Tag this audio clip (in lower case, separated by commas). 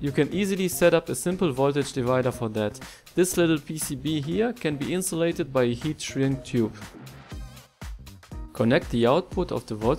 music, speech